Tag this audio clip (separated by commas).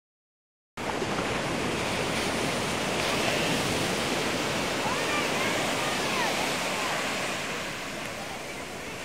Speech, ocean burbling, outside, rural or natural, Waves, Ocean